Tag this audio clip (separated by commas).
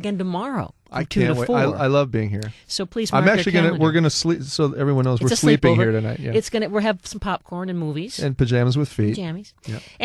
Speech